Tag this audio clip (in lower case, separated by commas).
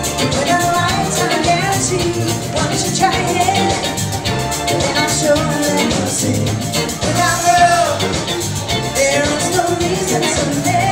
music of latin america, orchestra, music, singing